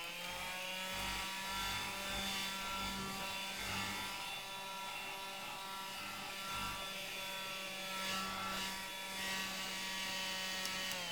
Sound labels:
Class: vacuum cleaner